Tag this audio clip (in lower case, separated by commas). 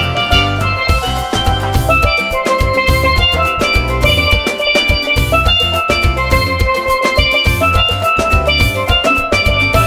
playing steelpan